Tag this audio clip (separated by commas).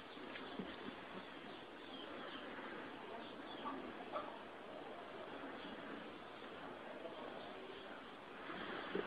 Domestic animals